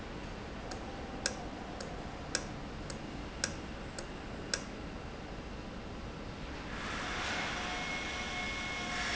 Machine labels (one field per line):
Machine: valve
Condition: normal